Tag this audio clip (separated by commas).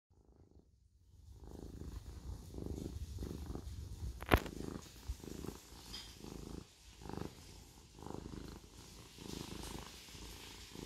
cat purring